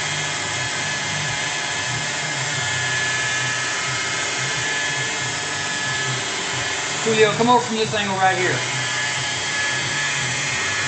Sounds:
speech

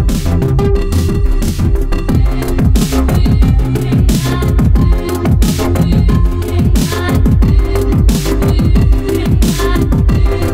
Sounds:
music, drum and bass

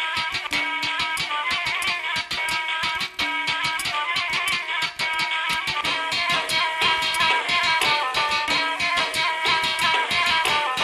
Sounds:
music

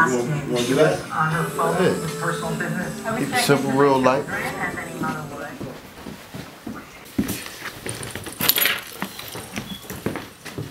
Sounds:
music, speech

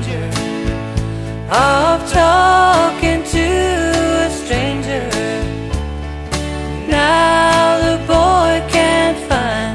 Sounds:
music

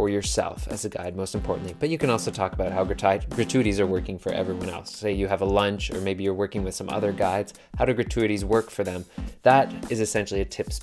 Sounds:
music, speech, man speaking

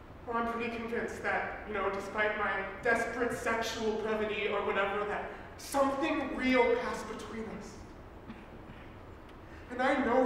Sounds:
speech, narration

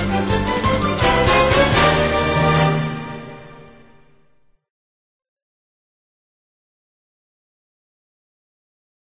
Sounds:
music

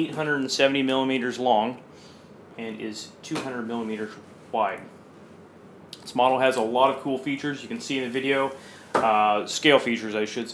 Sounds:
speech

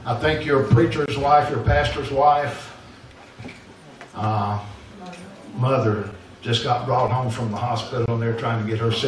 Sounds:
speech

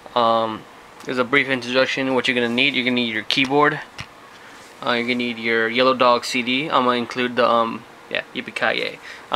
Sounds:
speech

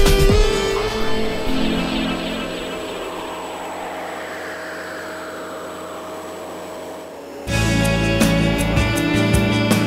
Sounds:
music, microwave oven

